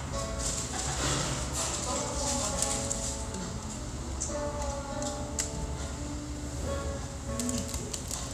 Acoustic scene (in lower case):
restaurant